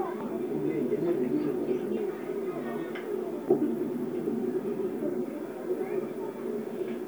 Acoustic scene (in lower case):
park